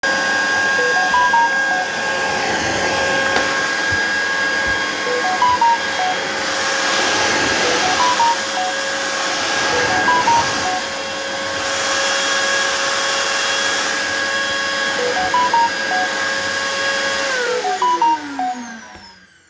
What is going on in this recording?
I was vacuuming my room when a notification came on my phone.